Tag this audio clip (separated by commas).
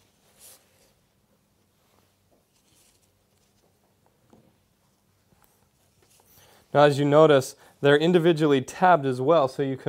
Speech